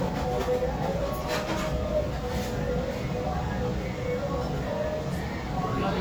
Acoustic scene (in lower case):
restaurant